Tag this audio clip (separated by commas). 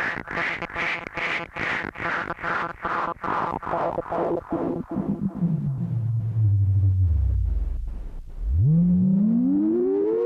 Music, Synthesizer